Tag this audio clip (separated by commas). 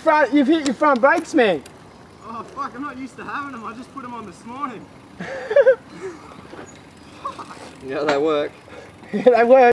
Speech